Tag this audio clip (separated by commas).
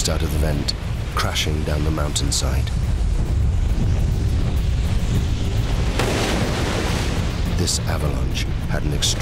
volcano explosion